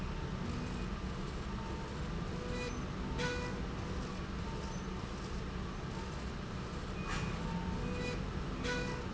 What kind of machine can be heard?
slide rail